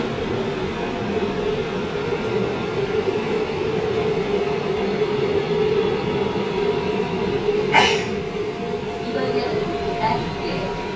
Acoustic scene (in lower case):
subway train